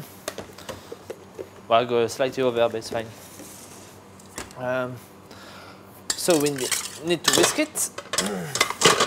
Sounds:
dishes, pots and pans, silverware

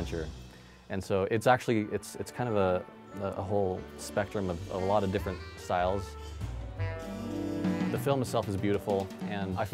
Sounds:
Music, Speech

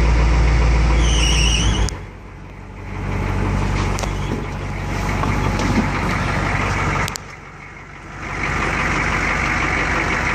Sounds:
Truck, Vehicle

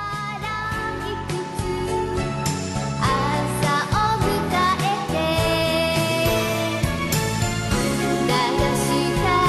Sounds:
Jingle (music)

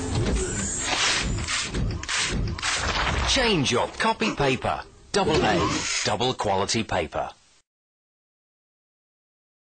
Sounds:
Speech

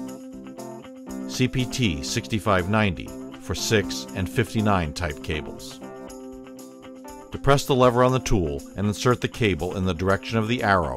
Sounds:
Speech, Music

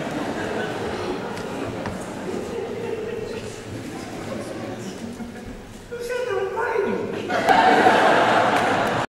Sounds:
Speech, Snicker

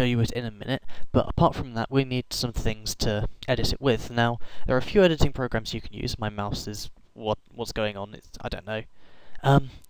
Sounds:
Speech

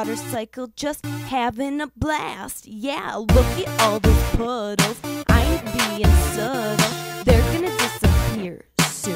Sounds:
Music, Speech

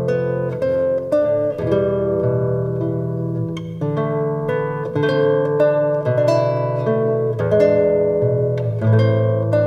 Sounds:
Strum, Musical instrument, Guitar, Plucked string instrument, Music

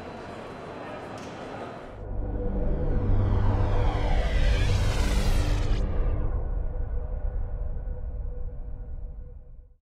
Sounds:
Music, Speech

